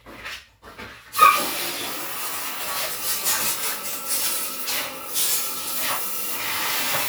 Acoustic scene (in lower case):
restroom